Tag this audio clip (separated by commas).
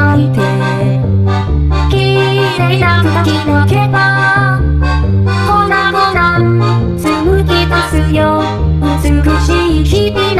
Music